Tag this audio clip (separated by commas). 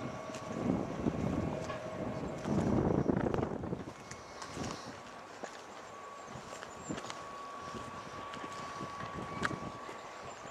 Wind